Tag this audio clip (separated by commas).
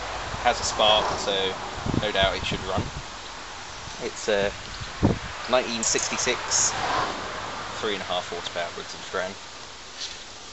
Speech